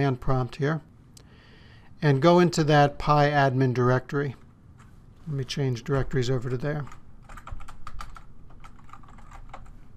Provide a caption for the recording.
A man speaks followed by some clicking on a keyboard